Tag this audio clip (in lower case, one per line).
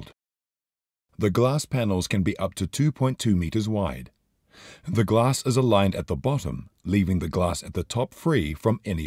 speech